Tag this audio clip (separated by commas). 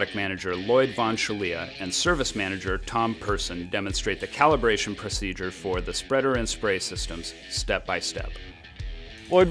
Music, Speech